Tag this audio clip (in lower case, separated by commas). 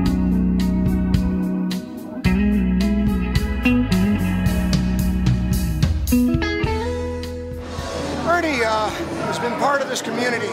music, blues, speech, rock music, electric guitar, guitar